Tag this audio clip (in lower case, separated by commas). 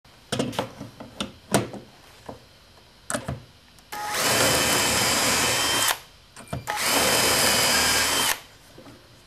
power tool, tools, drill